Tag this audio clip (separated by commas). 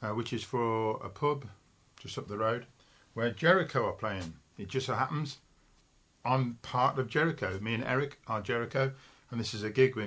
Speech